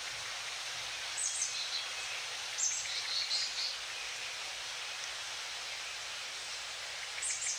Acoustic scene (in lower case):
park